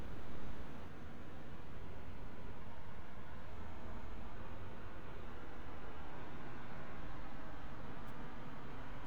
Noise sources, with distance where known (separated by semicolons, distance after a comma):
background noise